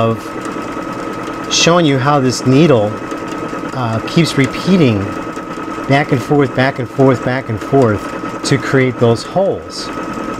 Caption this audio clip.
A man speaks while a sewing machine runs